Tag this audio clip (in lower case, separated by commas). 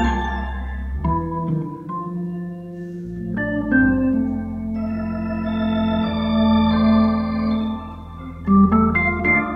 electronic organ, organ